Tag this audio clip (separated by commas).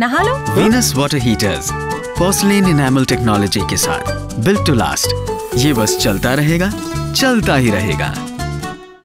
Speech, Music